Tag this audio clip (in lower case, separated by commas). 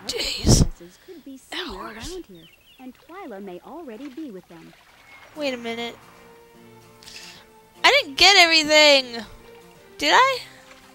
speech, music